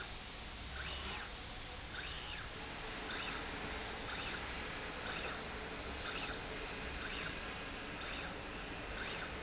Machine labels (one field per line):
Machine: slide rail